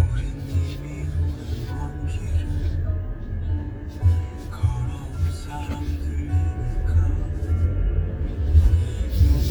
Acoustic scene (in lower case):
car